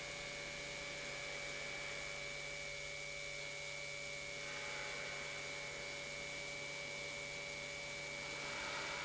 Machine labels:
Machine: pump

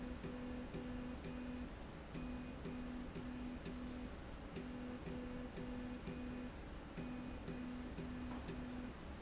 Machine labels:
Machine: slide rail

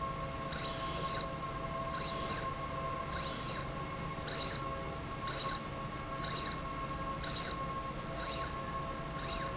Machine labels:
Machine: slide rail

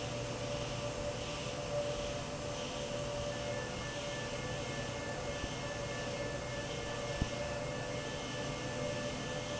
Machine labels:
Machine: fan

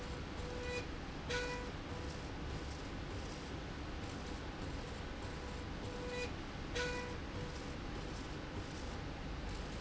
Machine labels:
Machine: slide rail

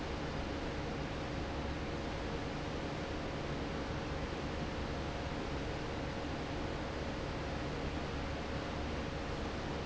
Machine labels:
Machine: fan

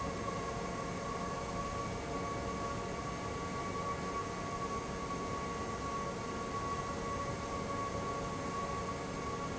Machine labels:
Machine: fan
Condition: abnormal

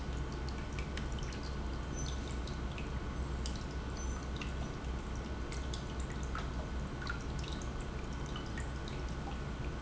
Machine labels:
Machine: pump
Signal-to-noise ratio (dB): -6 dB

